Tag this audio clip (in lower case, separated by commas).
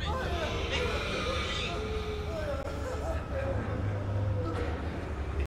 speech